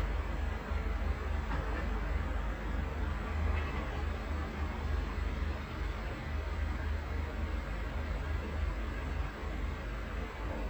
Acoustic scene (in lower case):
residential area